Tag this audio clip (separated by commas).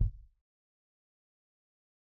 Bass drum, Musical instrument, Percussion, Drum, Music